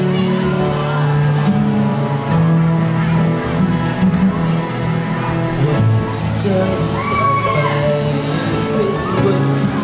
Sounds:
Male singing, Speech, Music

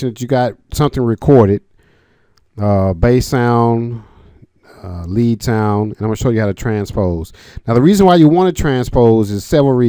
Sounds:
Speech

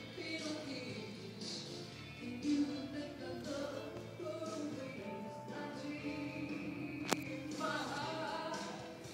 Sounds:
Music

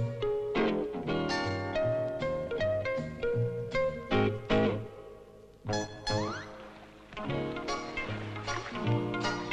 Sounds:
Music, inside a small room

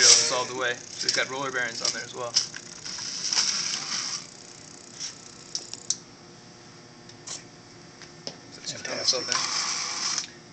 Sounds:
Speech

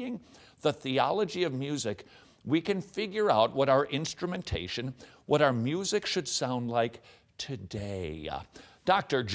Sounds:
Speech

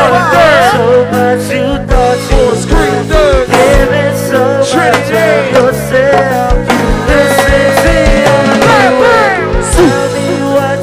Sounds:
Music

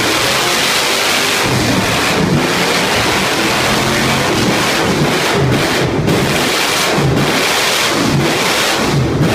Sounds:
Vehicle

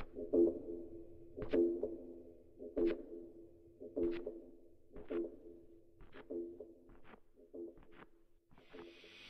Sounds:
Bouncing

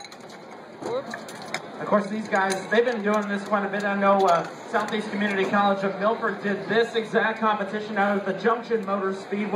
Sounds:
Speech

